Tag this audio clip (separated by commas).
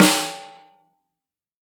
Percussion, Music, Snare drum, Musical instrument, Drum